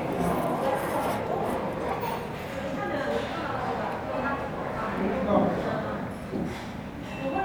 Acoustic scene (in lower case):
restaurant